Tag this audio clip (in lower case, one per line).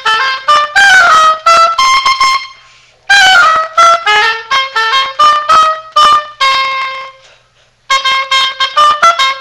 playing oboe